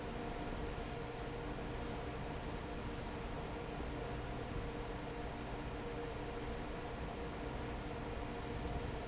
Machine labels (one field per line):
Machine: fan